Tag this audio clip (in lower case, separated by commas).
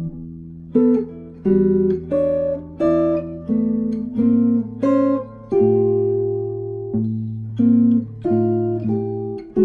guitar, musical instrument, acoustic guitar, music, plucked string instrument, strum